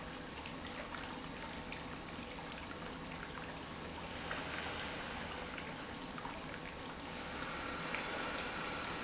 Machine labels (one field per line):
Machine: pump